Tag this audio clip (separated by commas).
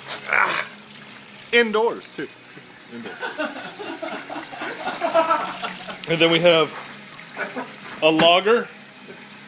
Speech